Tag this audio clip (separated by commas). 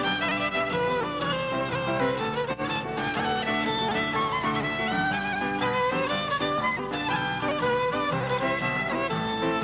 fiddle, Musical instrument, Music